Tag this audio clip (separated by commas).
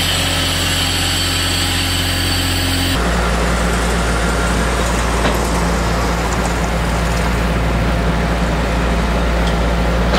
Engine, Vehicle